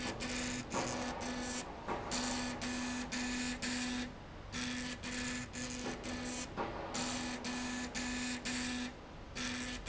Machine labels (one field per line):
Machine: slide rail